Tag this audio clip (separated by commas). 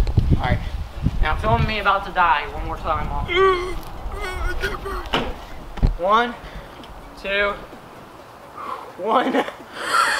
bouncing on trampoline